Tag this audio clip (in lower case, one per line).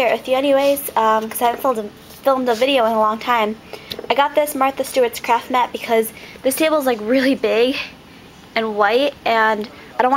speech